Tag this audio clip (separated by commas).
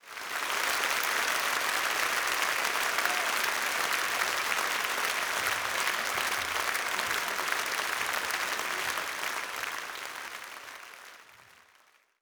Applause, Human group actions